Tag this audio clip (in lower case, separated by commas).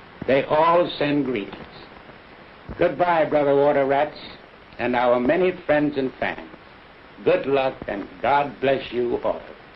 speech